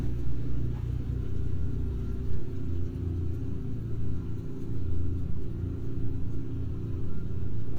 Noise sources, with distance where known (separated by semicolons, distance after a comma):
medium-sounding engine, near